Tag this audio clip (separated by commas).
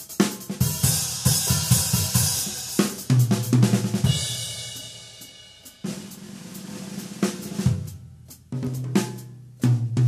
Drum kit, Rimshot, Drum roll, Bass drum, Percussion, Snare drum, Drum